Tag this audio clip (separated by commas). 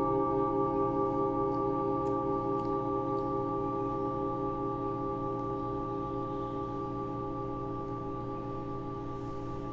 Music